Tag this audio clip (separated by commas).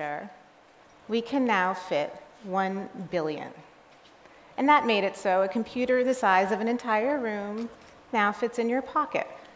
Speech